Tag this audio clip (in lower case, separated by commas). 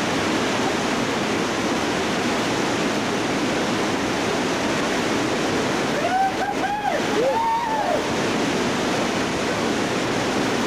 vehicle, rowboat